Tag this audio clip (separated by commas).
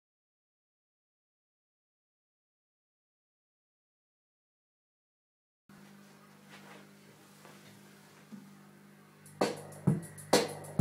Drum machine, Music